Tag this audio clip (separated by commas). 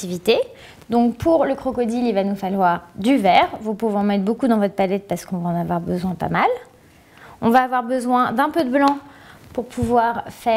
Speech